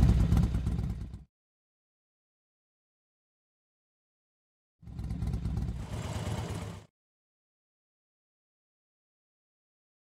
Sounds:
Vehicle

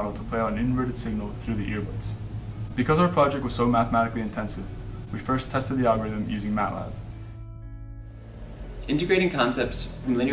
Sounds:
Music, Speech

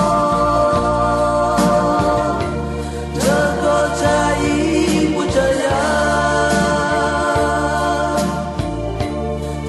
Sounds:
Music

